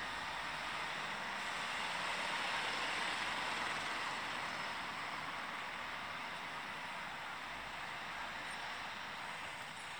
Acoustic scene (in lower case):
street